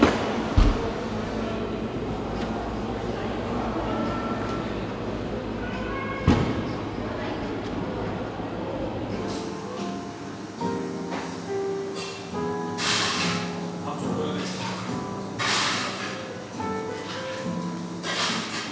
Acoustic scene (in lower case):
cafe